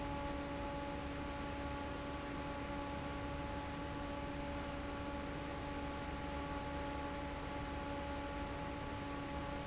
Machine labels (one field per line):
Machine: fan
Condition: normal